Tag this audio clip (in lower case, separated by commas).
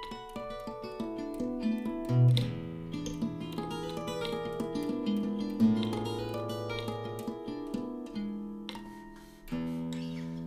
guitar, plucked string instrument, music, strum, musical instrument